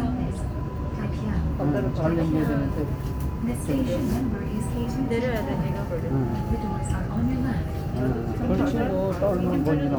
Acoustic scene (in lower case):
subway train